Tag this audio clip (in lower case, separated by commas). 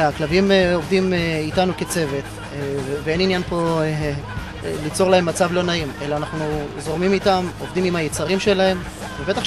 dog, pets, music, speech, bow-wow, animal